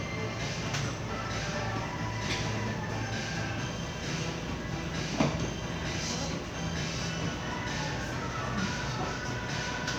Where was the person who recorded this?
in a crowded indoor space